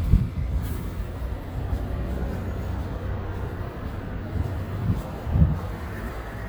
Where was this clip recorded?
on a street